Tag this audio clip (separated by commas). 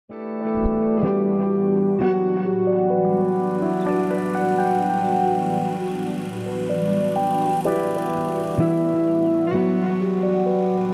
outside, rural or natural, Music